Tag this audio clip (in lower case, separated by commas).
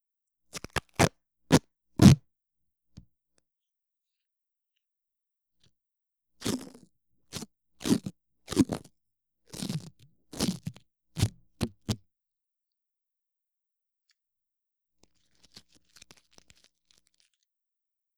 domestic sounds, packing tape